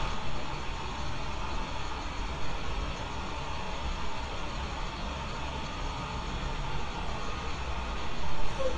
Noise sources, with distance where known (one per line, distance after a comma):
large-sounding engine, near